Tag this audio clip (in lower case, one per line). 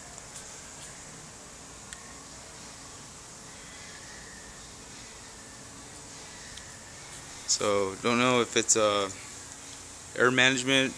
speech